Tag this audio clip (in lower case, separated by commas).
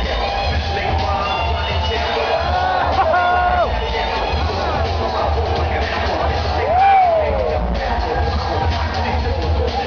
music